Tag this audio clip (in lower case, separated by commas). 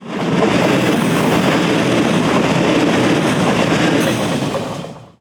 vehicle, rail transport, train